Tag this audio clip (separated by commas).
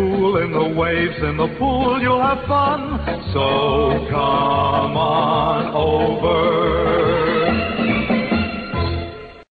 Music, Radio